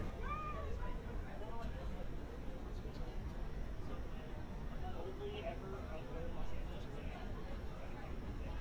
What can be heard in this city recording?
person or small group talking